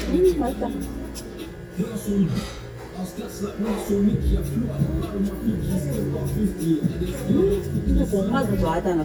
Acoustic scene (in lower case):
restaurant